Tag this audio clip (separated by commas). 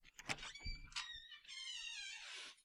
Domestic sounds, Door